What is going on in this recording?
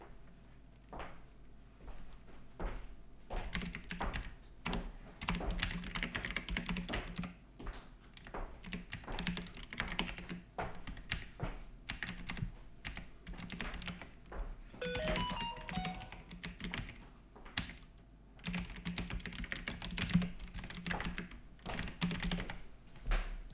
My roommate is walking in the background. I start typing on my keyboard, phone notification rings, I continue typing and footsteps are still heard.